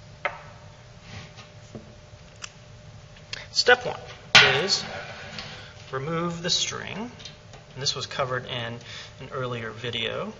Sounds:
Speech, inside a small room

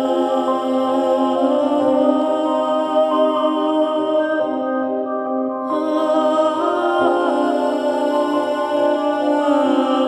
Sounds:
Music

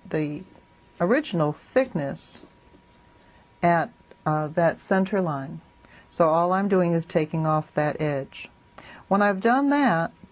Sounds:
Speech

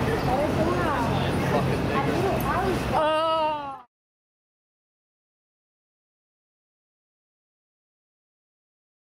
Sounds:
Speech

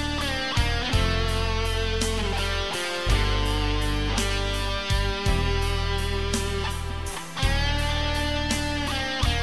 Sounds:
Music, Guitar, Musical instrument

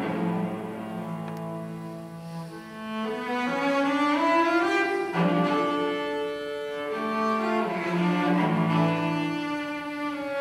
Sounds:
Musical instrument, Music, Cello, Bowed string instrument, Orchestra, fiddle

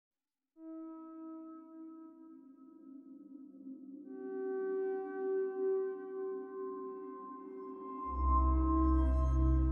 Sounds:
Music

